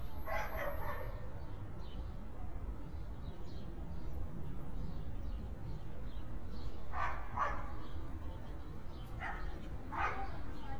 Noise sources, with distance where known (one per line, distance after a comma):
dog barking or whining